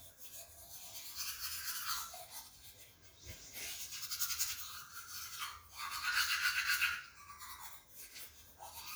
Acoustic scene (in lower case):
restroom